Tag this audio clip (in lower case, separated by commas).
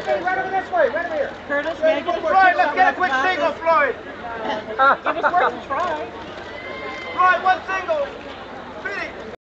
speech